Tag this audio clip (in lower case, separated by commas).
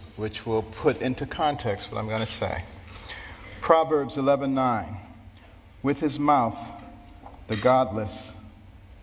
narration, male speech, speech